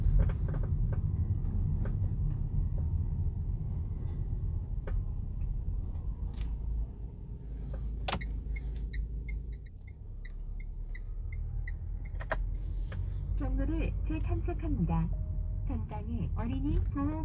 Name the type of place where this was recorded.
car